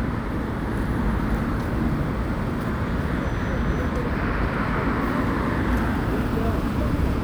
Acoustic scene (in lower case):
street